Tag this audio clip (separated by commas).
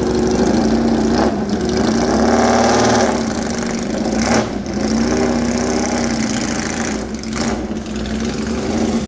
Car, Vehicle